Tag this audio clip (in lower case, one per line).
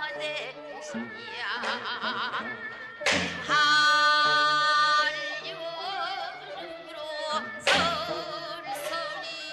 music
traditional music